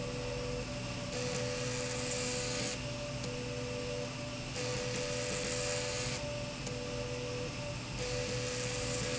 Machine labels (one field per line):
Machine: slide rail